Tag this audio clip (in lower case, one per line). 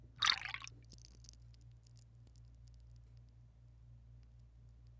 liquid